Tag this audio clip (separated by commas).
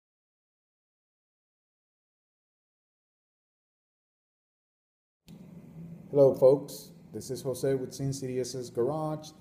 Speech